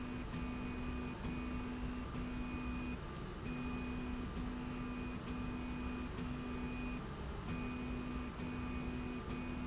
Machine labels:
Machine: slide rail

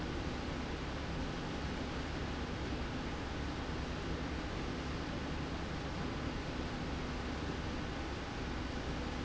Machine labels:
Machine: slide rail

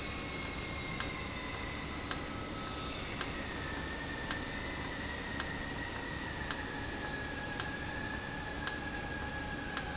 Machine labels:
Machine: valve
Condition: normal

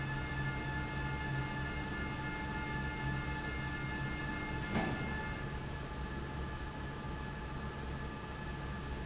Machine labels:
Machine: fan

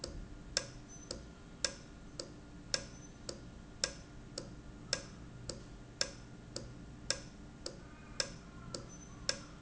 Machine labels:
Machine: valve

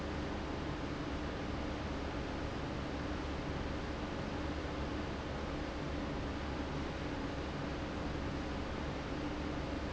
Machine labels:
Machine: fan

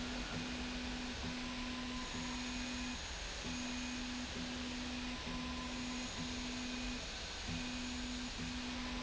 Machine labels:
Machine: slide rail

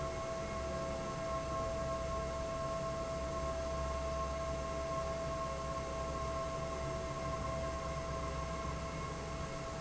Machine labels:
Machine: fan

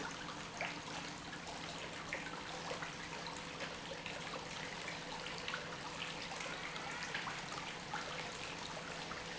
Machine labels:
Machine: pump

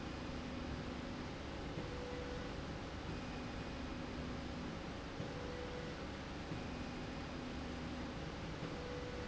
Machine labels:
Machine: slide rail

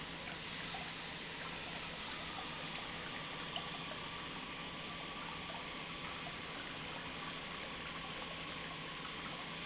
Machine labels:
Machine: pump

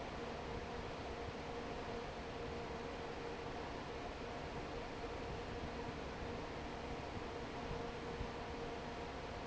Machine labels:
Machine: fan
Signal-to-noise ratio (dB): 6 dB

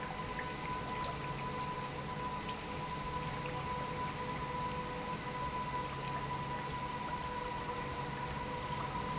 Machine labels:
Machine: pump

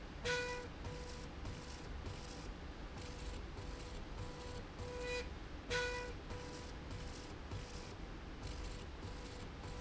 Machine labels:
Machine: slide rail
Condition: normal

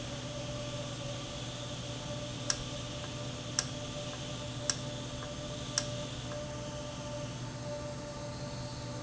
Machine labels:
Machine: valve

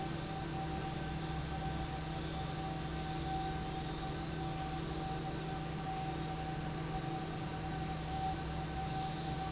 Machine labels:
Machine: fan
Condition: normal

